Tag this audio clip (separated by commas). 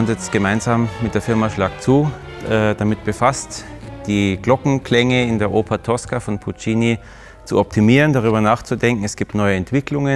Music, Speech